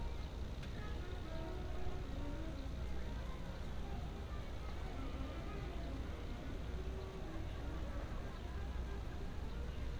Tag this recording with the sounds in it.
music from an unclear source, person or small group talking